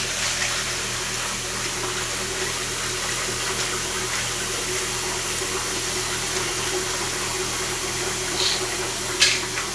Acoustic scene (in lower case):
restroom